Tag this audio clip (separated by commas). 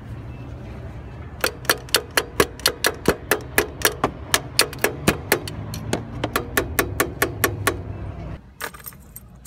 Car, Vehicle